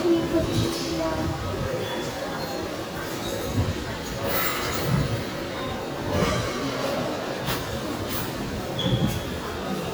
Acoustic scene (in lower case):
subway station